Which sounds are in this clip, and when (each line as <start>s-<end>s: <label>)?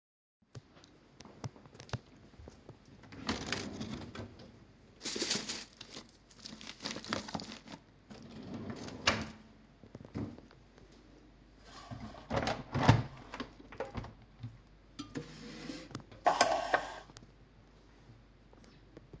3.2s-4.6s: wardrobe or drawer
8.1s-9.4s: wardrobe or drawer
12.1s-14.2s: window
15.0s-17.2s: cutlery and dishes